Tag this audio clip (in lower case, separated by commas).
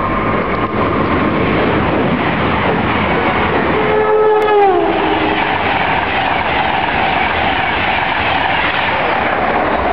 vehicle